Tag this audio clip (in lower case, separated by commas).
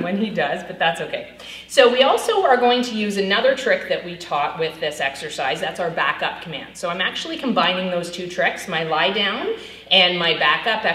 speech